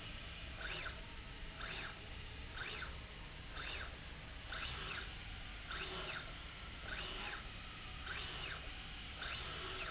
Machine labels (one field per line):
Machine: slide rail